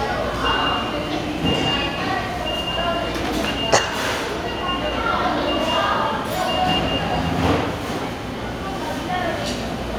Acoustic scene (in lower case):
restaurant